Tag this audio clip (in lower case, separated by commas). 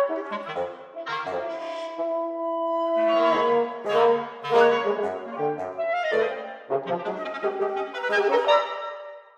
musical instrument, classical music, orchestra, music, wind instrument